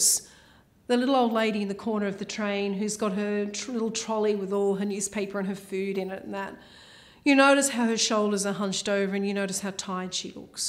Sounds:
Speech

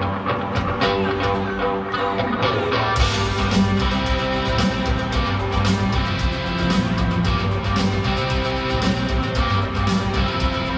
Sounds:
Music

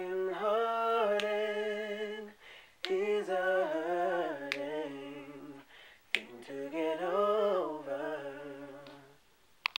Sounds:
Male singing, Choir, Female singing

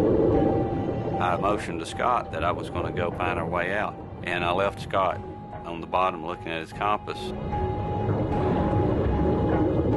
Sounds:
Music, Speech, inside a small room

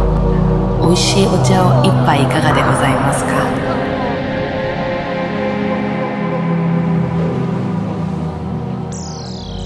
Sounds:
Speech, Music

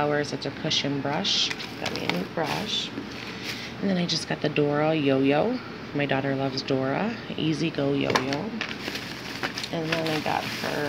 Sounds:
Speech, inside a small room

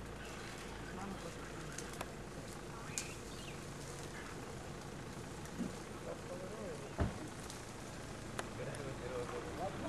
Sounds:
Speech, outside, rural or natural, Animal

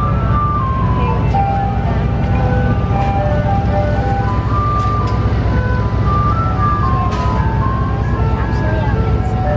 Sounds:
ice cream truck

